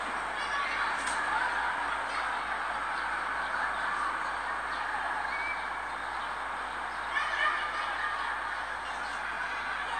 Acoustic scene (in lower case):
residential area